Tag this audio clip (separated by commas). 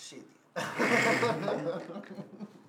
Laughter, Human voice